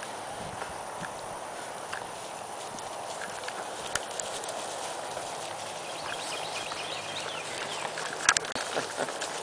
Large animals walk on the grass, birds chirp in the distance